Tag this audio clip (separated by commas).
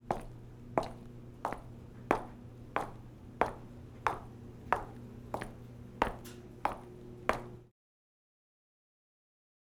Walk